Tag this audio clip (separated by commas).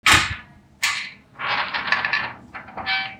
Squeak